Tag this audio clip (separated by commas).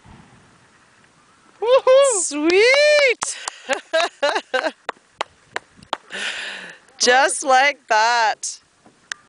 Speech